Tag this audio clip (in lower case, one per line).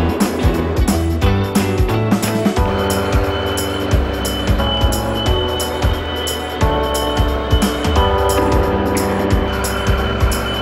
music